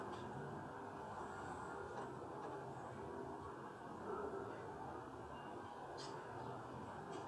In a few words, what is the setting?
residential area